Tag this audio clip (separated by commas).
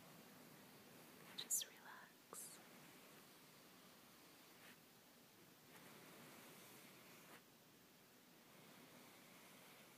Whispering